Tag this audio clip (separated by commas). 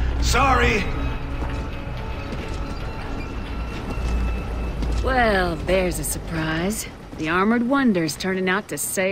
Music, Speech